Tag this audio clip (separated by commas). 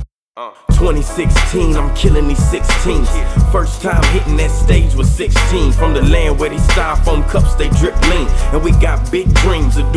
Pop music, Music